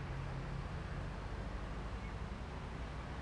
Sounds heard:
car, car engine idling

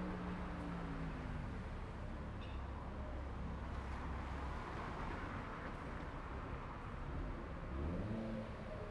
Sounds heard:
car wheels rolling, car engine accelerating, car engine idling, car

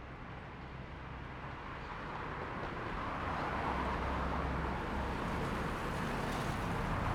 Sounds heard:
motorcycle, car, motorcycle engine accelerating, car wheels rolling

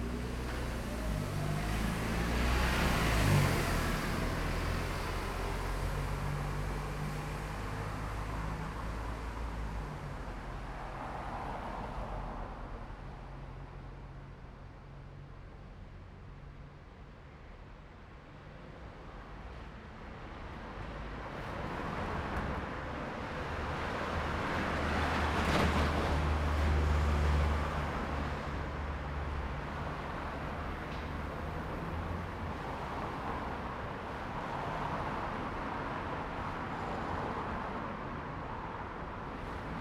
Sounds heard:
truck wheels rolling, bus engine accelerating, bus, car, bus compressor, car wheels rolling, truck engine accelerating, truck

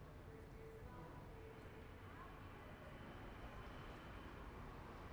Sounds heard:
unclassified sound, truck, truck engine accelerating

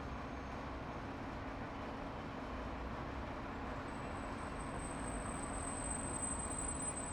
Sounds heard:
bus, bus engine idling, car

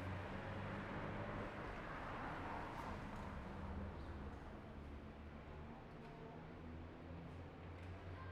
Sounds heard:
car wheels rolling, car

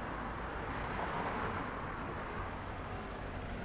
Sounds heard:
bus engine idling, car, bus, car wheels rolling

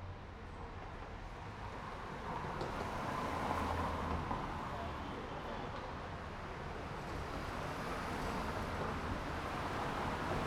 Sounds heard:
car, motorcycle wheels rolling, car wheels rolling, people talking, motorcycle

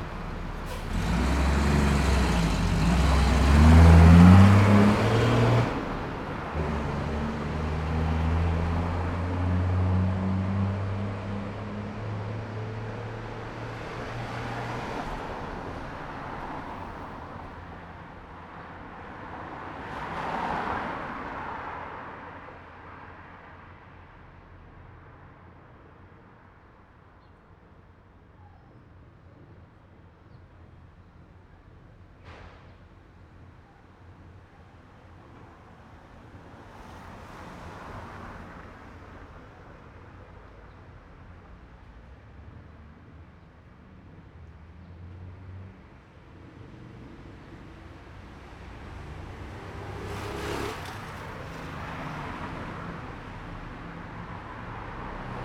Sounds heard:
bus engine accelerating, car wheels rolling, motorcycle engine accelerating, motorcycle, bus engine idling, car, bus

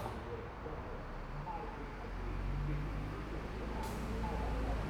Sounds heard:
bus engine accelerating, car wheels rolling, car, unclassified sound, bus compressor, bus

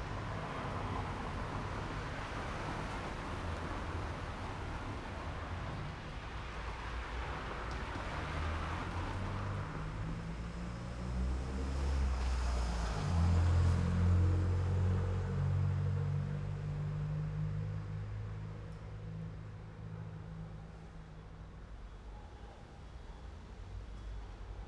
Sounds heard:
car engine accelerating, car, car wheels rolling

